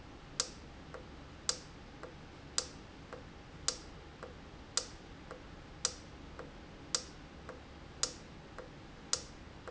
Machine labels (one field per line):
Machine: valve